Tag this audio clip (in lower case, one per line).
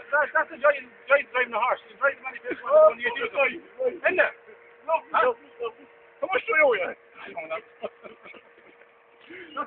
speech